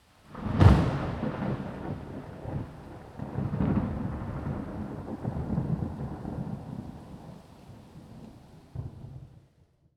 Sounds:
water
rain

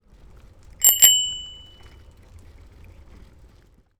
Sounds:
vehicle
alarm
bicycle
bicycle bell
bell

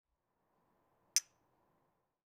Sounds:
clink
glass

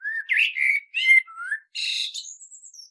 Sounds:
bird
animal
wild animals

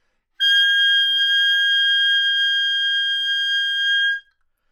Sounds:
music
musical instrument
woodwind instrument

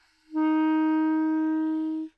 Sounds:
music
wind instrument
musical instrument

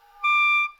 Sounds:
music
musical instrument
woodwind instrument

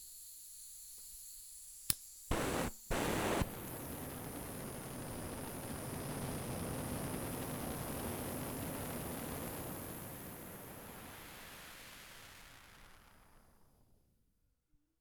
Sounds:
fire

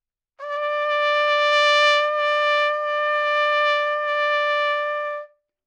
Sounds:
music
musical instrument
brass instrument
trumpet

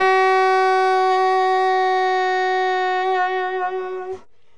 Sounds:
woodwind instrument
musical instrument
music

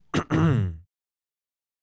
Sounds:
cough
respiratory sounds

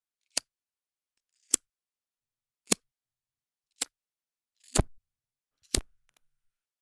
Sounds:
fire

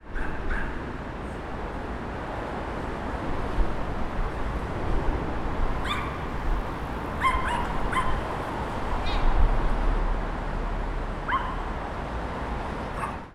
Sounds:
pets
dog
animal

